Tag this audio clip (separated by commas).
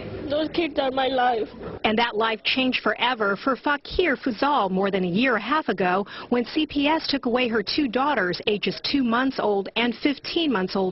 Speech